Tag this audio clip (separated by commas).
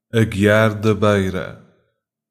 Human voice